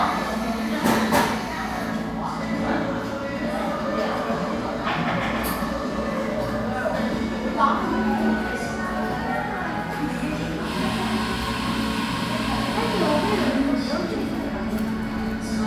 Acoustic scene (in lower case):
crowded indoor space